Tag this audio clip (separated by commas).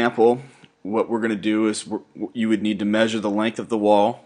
Speech